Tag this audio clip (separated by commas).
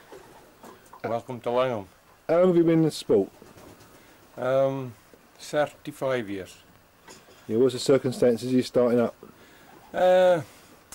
Speech